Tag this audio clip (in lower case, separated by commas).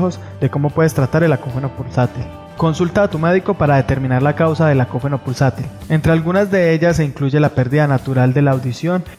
music, speech